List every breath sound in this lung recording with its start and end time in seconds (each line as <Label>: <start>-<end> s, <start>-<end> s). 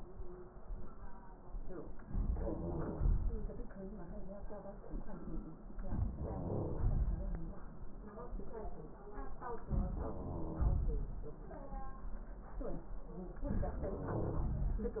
Wheeze: 2.55-3.20 s, 9.93-10.84 s, 13.97-14.88 s